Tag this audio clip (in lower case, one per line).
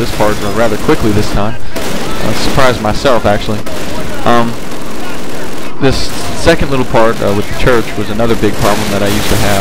speech